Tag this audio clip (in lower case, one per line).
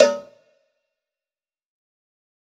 cowbell
bell